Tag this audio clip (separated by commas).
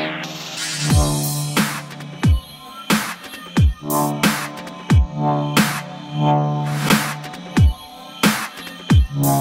Music, Drum and bass